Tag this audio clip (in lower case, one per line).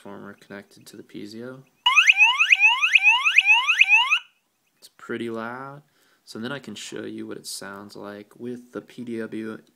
buzzer
speech
fire alarm